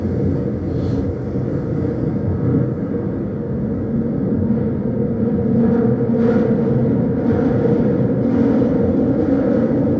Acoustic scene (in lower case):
subway train